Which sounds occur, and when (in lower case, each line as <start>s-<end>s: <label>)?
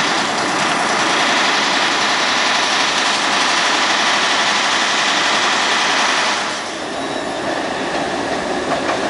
0.0s-9.0s: metro
6.9s-9.0s: train wheels squealing
8.7s-9.0s: clickety-clack